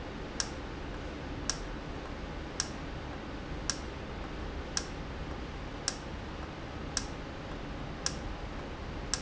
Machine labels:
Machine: valve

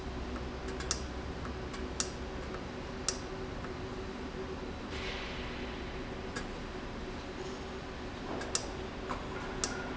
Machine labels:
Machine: valve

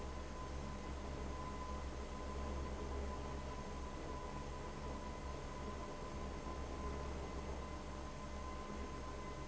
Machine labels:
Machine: fan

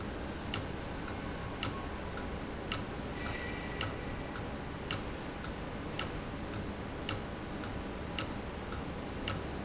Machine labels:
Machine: valve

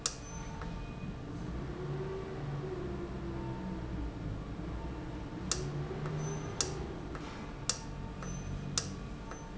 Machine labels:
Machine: valve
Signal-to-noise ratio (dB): -6 dB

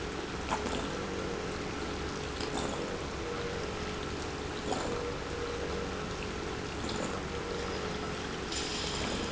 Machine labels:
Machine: pump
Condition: abnormal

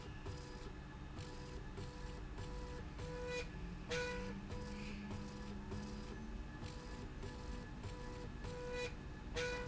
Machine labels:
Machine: slide rail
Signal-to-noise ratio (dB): 6 dB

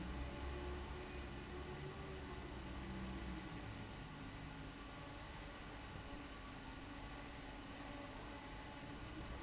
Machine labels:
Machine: fan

